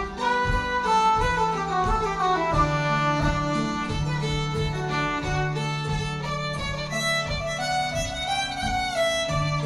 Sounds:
musical instrument, fiddle, plucked string instrument, music, bowed string instrument

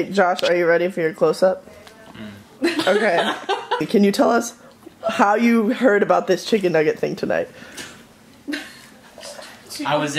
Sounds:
speech, laughter

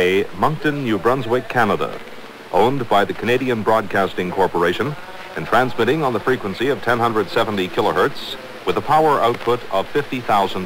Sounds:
speech

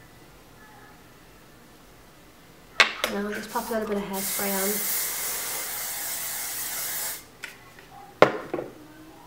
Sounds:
inside a small room, speech

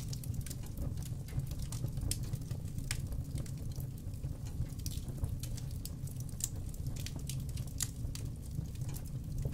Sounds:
fire crackling

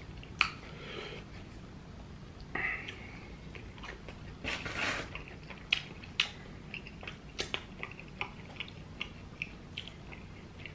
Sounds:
people slurping

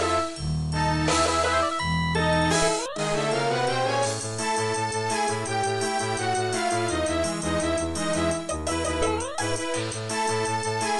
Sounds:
video game music, music

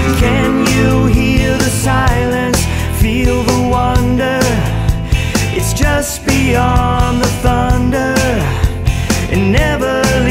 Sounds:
music

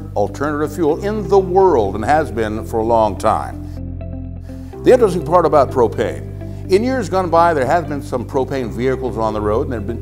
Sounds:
music, speech

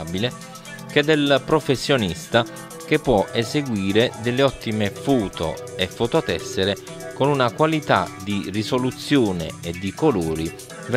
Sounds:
speech, music

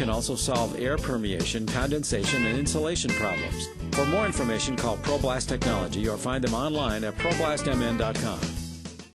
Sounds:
music, speech

